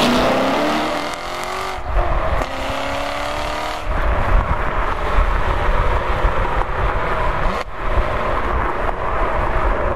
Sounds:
Car, Vehicle, Flap

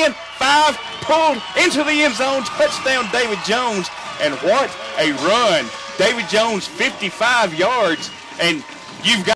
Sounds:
Speech

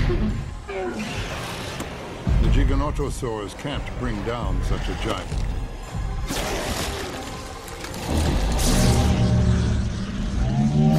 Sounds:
dinosaurs bellowing

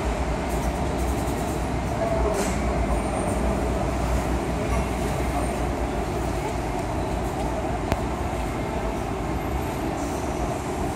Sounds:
Vehicle

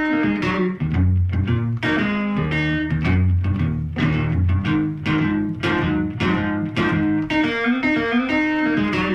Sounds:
Guitar, Plucked string instrument, Musical instrument, Acoustic guitar, Music, Strum

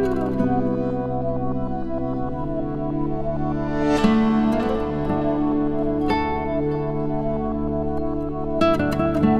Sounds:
Music

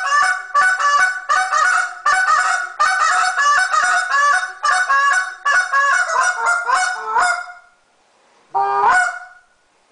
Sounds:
Honk, Goose, Fowl

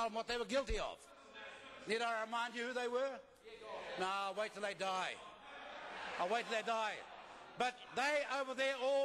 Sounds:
Conversation, Speech, Male speech

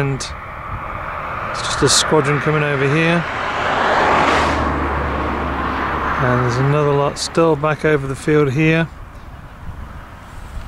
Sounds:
Speech

